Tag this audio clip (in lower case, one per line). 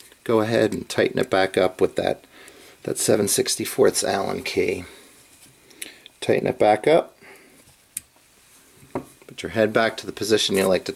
speech
inside a small room